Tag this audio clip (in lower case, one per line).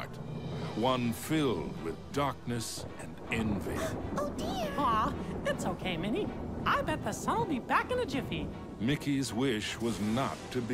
speech
music